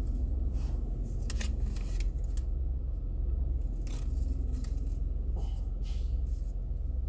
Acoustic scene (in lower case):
car